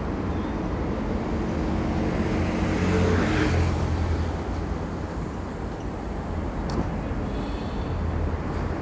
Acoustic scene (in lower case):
street